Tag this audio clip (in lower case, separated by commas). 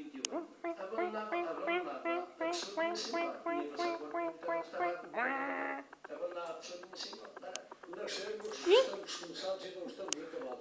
speech